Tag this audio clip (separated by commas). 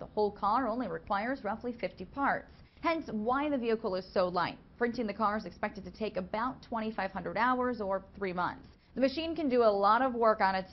Speech